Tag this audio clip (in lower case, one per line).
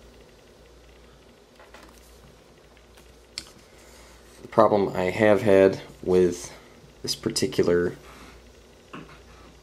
speech
inside a small room